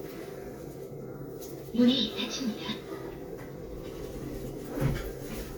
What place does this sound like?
elevator